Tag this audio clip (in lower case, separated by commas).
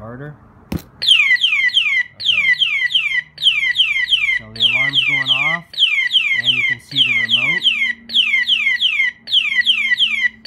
alarm, speech